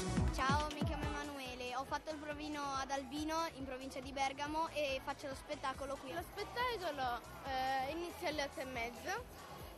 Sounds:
Speech, Music

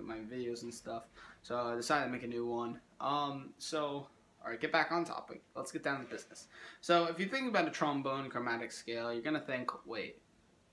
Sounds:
Speech

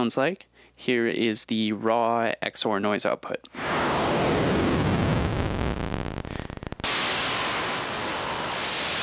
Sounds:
Speech, White noise

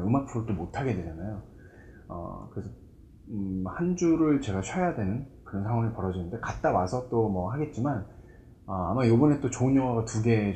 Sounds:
Speech

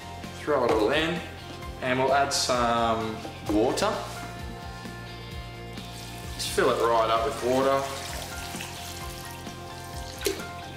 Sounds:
Water

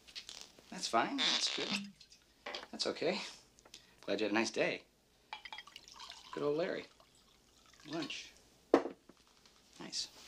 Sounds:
Speech, inside a small room

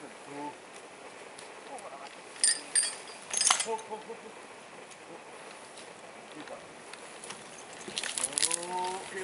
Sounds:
Speech

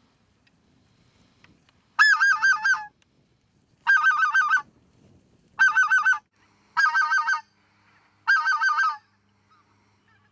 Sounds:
Honk, Fowl, Goose

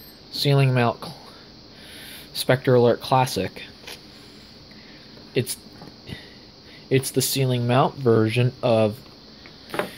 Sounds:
Speech

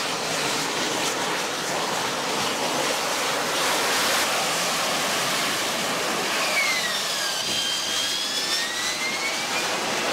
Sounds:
Aircraft, Vehicle

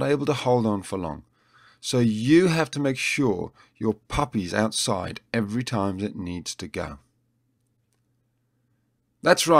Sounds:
Speech

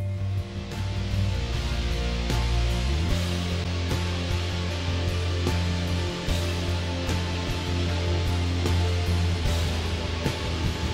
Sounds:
Music

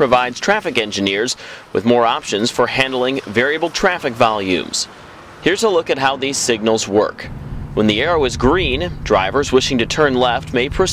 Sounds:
Speech

